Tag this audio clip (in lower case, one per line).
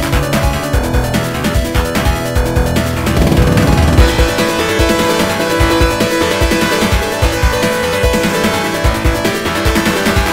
music